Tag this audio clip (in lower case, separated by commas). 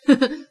laughter, chortle, human voice